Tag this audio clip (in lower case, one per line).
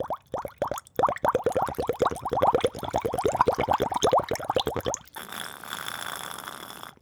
gurgling
water